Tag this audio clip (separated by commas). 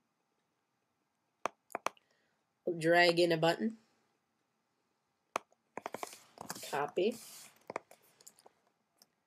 Speech, Clicking